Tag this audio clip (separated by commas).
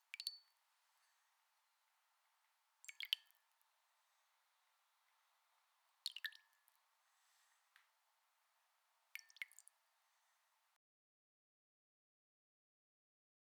Rain, Liquid, Raindrop, Drip, Water